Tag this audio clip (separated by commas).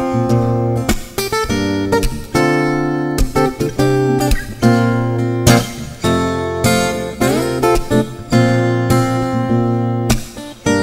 Music, Acoustic guitar